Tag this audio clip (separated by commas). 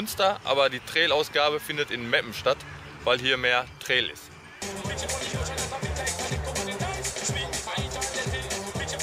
Music, Speech, outside, rural or natural